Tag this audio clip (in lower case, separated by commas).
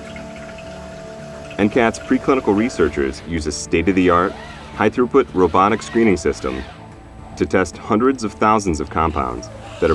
speech, music